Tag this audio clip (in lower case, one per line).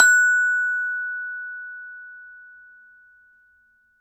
percussion
music
glockenspiel
musical instrument
mallet percussion